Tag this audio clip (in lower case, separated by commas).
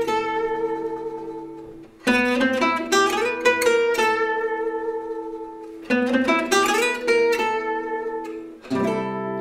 musical instrument, music, plucked string instrument, guitar, strum, acoustic guitar, speech